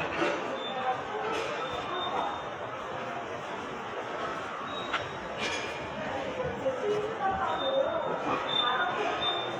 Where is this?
in a subway station